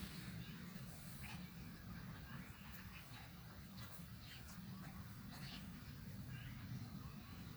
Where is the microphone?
in a park